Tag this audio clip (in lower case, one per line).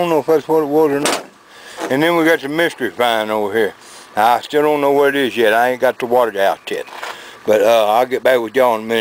speech